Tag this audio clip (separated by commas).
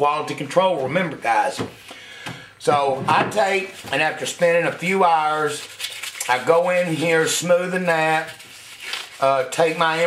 Speech